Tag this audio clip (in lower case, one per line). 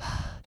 respiratory sounds
breathing